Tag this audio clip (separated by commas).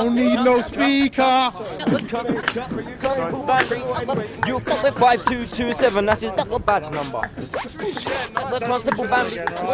Speech, Music